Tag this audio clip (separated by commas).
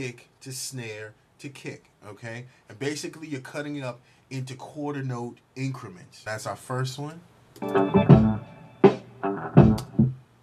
Speech, Music